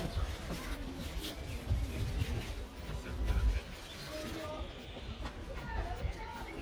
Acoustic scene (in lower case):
park